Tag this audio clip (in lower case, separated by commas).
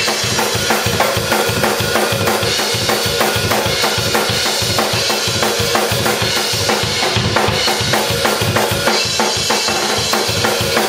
bass drum, music, drum, drum kit, musical instrument